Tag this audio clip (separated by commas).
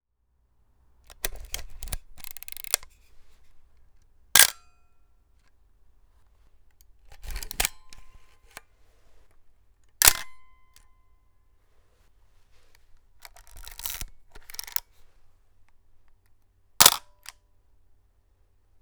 Mechanisms, Camera